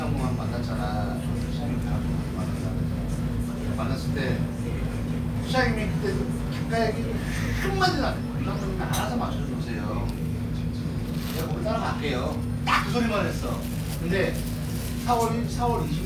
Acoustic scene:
crowded indoor space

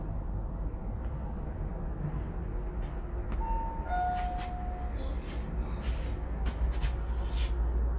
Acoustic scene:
elevator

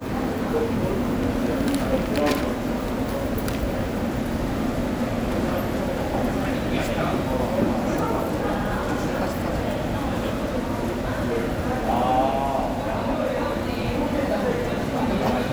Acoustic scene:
subway station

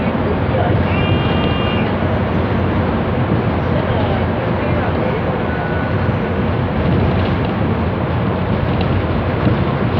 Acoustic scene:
bus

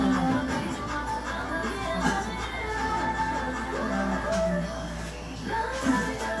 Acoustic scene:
cafe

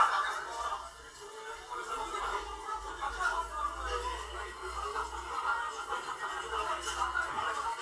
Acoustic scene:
crowded indoor space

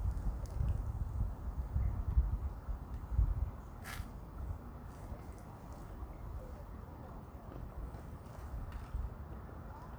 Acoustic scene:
park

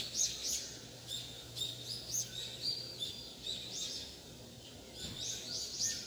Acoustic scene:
park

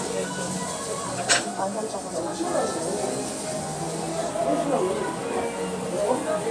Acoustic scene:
restaurant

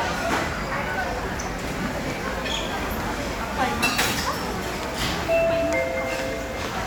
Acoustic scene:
crowded indoor space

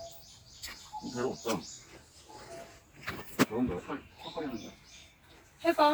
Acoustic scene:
park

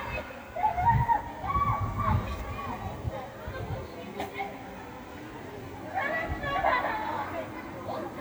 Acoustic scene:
residential area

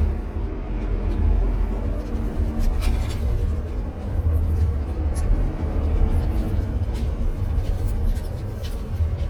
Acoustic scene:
car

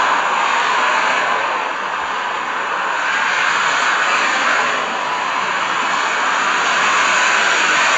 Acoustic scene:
street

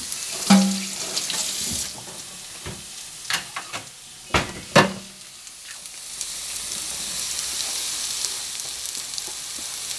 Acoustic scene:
kitchen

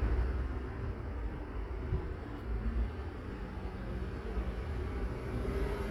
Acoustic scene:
street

